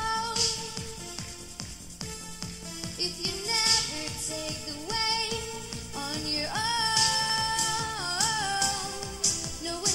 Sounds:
Music

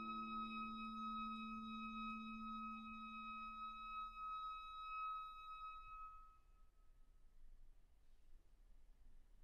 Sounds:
Music, Brass instrument, Musical instrument

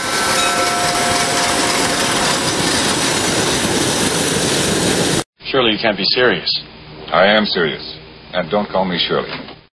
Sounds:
Speech

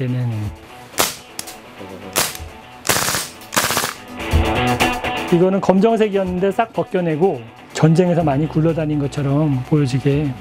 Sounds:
cap gun shooting

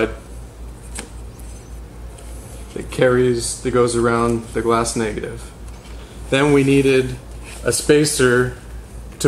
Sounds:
Speech

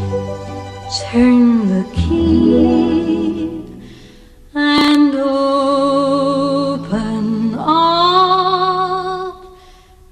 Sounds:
Music

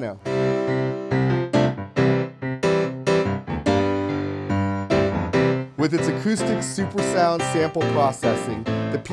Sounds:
Music

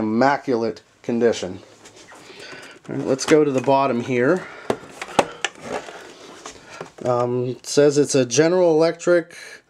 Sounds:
Speech

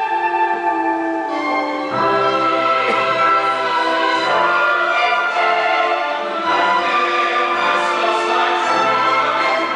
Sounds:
Choir, Orchestra, Opera

